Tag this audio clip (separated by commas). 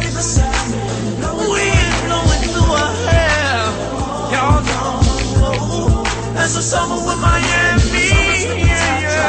Rhythm and blues, Hip hop music, Music